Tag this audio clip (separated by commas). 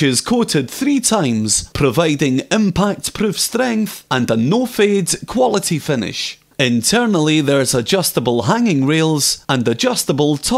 Speech